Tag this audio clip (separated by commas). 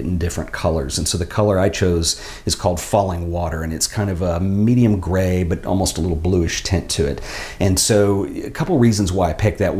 Speech